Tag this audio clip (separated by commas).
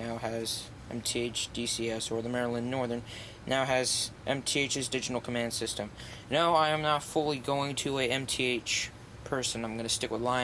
Speech